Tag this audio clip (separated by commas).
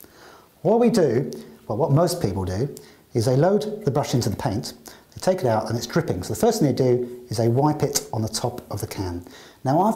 Speech